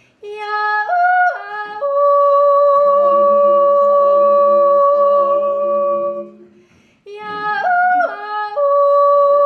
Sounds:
yodeling

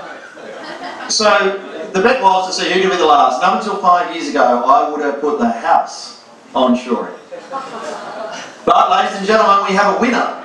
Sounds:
speech
man speaking

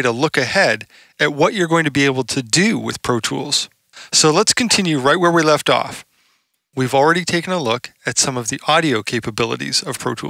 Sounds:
speech

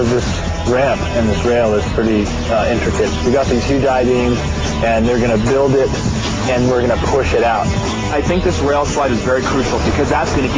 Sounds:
speech

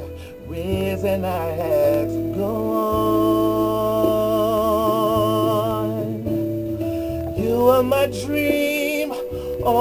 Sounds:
music
inside a small room

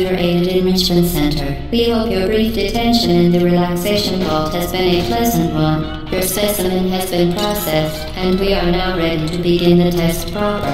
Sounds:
speech
music

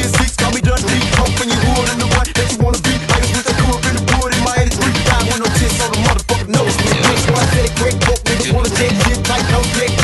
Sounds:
afrobeat
music

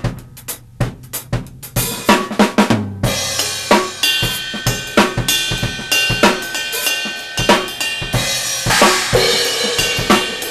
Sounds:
music
snare drum

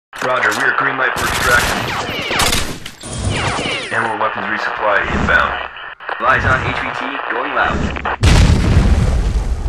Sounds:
music
speech
boom

